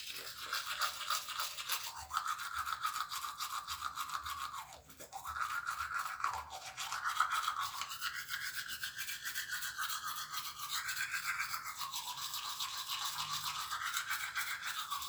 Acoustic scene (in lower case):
restroom